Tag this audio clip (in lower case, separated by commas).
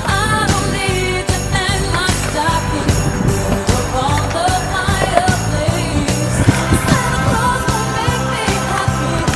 music, skateboard